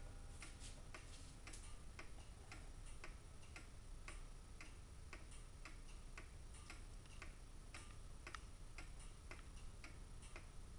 A clock tick locking